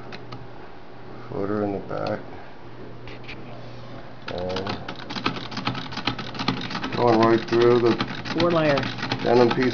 A male speaks followed by the rhythmic pounding of a sewing machine while another male enters the conversation